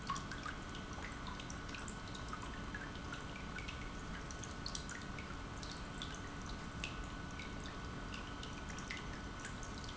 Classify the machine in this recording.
pump